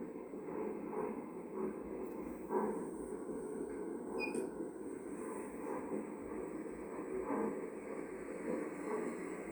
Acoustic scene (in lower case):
elevator